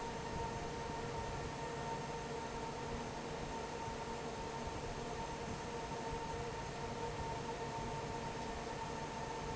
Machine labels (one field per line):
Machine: fan